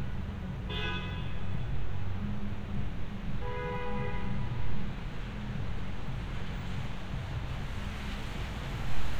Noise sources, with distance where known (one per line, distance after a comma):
medium-sounding engine, near
car horn, far